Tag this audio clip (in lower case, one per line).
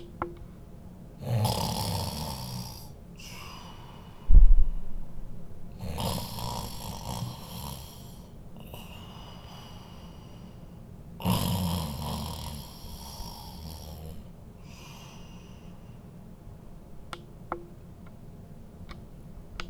breathing
respiratory sounds